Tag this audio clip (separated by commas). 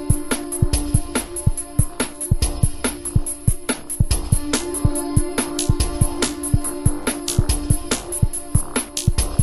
Music